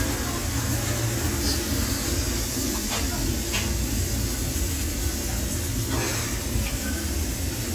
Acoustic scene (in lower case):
restaurant